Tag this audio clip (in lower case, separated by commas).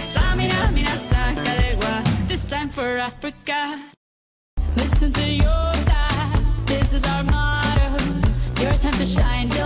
music